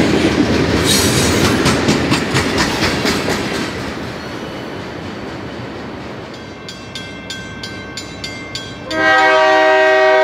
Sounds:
train wagon, Train horn, Rail transport, Vehicle, Train

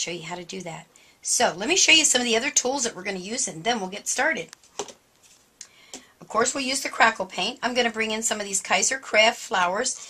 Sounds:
Speech

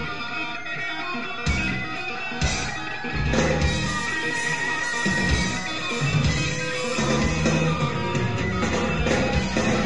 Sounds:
Music

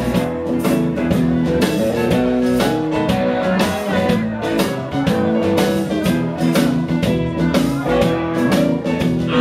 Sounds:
Speech, Music

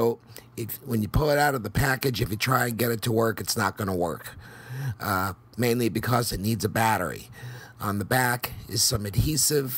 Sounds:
Speech

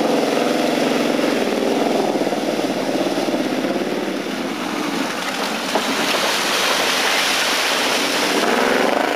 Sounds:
Car, Vehicle, Motor vehicle (road)

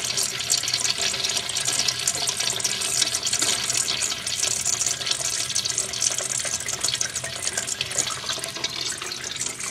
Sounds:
toilet flushing, Toilet flush

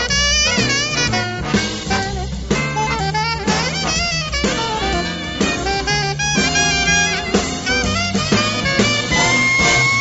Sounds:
Music

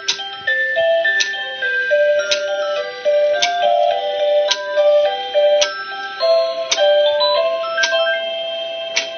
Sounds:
Tick, Music, Clock

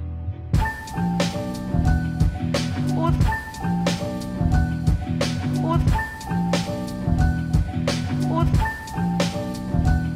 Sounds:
Music

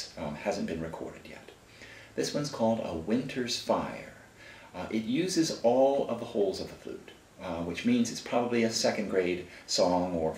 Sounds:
Speech

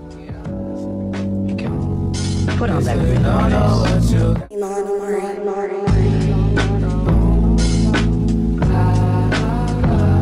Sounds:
Music, outside, urban or man-made, Speech

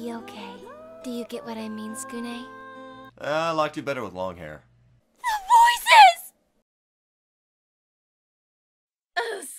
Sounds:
Music, Speech

